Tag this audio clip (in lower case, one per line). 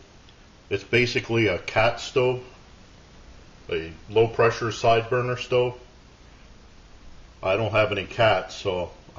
speech